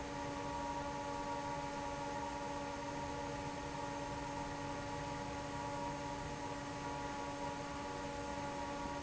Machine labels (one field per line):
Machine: fan